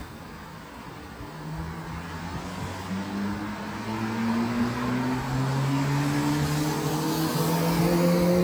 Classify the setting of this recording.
street